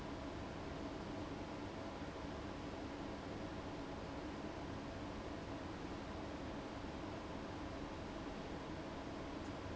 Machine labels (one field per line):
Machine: fan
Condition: abnormal